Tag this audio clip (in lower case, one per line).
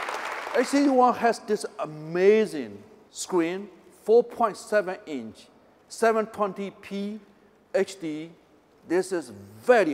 speech